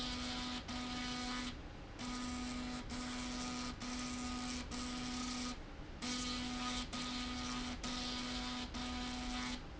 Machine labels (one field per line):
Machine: slide rail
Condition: abnormal